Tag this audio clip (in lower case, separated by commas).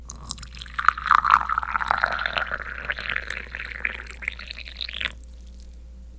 fill (with liquid), liquid